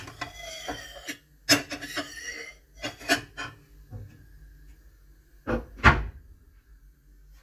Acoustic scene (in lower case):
kitchen